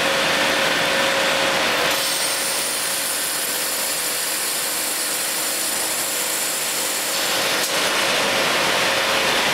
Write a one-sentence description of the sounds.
A drill is being used to drill through material